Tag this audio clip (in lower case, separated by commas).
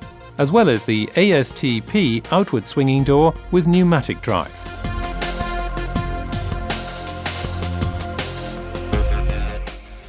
music, speech